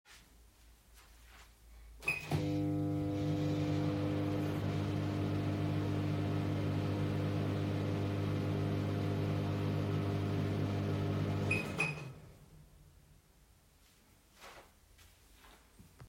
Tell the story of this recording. I turned on the microwave and turned it off after a while.